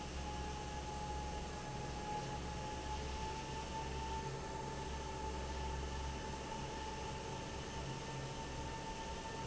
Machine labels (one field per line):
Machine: fan